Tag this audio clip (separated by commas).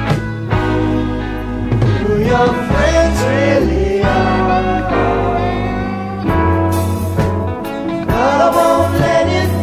Music